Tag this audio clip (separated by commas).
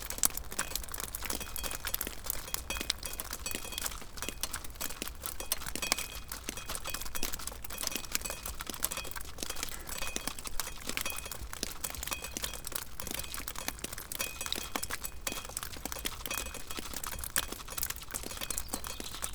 Liquid, Drip